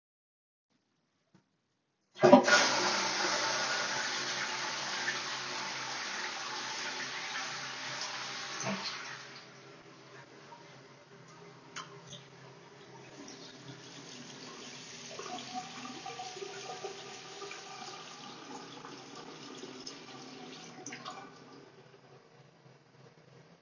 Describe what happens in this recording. I opened the wardrobe drawer and handled a keychain near the phone.